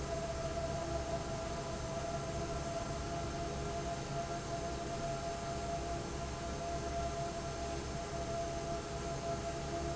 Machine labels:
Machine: fan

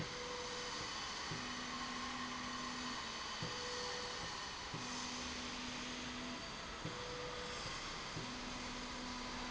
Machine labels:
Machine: slide rail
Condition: normal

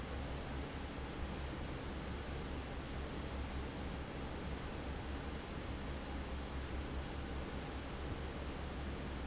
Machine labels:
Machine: fan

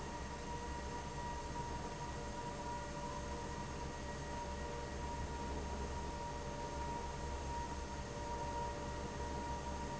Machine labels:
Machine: fan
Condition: abnormal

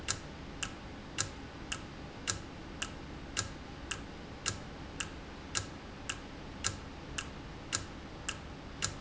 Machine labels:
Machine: valve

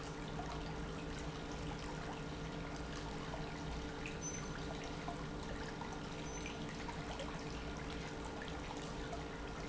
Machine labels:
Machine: pump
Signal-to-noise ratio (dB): 0 dB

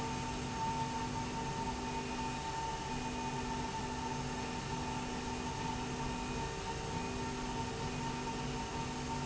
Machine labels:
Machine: slide rail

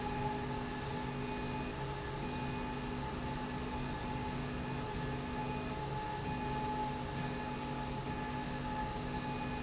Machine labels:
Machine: slide rail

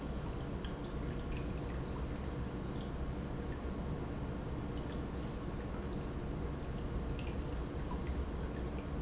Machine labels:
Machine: pump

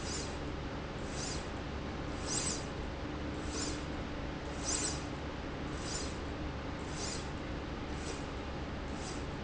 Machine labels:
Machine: slide rail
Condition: normal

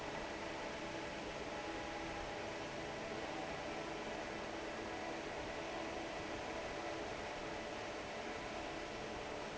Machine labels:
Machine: fan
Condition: normal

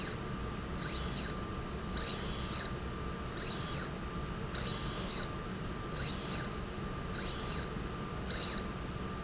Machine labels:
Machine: slide rail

